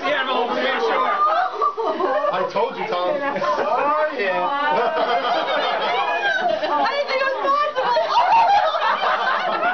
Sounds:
speech, snicker

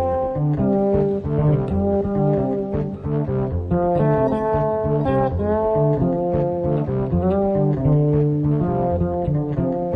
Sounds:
guitar, music, plucked string instrument, bass guitar, musical instrument

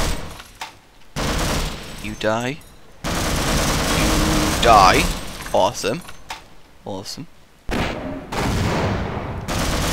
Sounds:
fusillade, gunfire

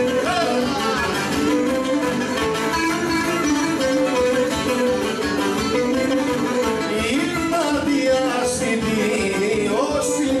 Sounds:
music, sitar

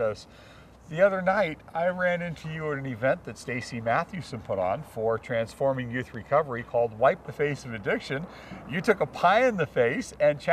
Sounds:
speech

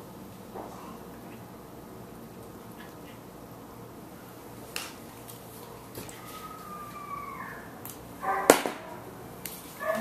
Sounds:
animal, speech, domestic animals

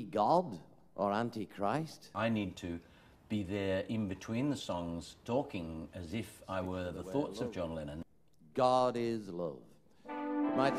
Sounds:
speech

